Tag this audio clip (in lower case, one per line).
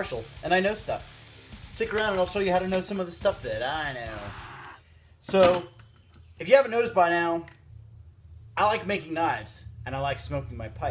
music
speech